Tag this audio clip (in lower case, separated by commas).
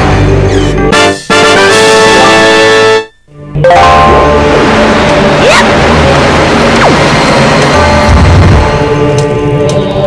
music